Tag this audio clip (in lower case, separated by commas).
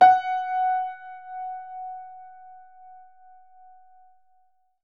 piano, keyboard (musical), music, musical instrument